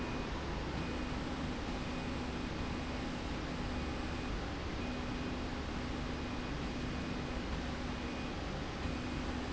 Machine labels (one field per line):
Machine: slide rail